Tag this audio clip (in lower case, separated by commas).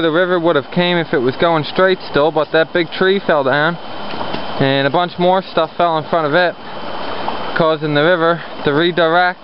stream, speech